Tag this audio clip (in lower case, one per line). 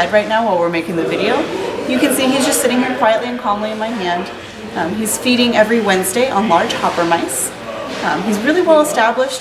speech
inside a large room or hall